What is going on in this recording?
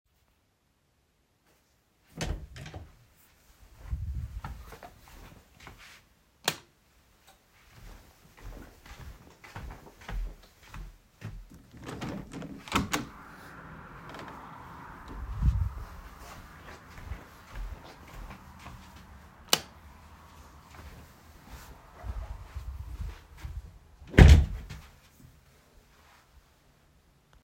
I opened the door, entered the room, and turned on the light. I walked to the window and opened it. Then I walked back, turned off the light, left the room, and closed the door.